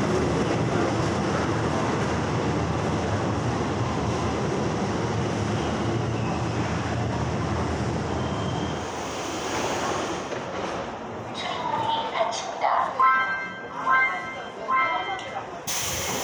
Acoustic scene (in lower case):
subway station